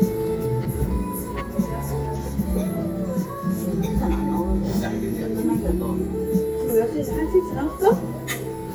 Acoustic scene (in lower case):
crowded indoor space